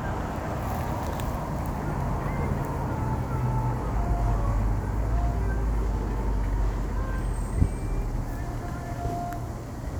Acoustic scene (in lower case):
street